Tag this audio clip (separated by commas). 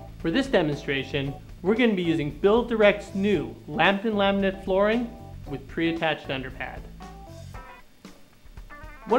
Speech, Music